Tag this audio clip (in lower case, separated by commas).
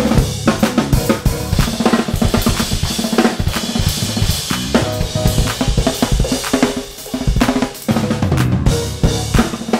bass drum, cymbal, drum kit, musical instrument, snare drum, hi-hat, percussion, music, playing drum kit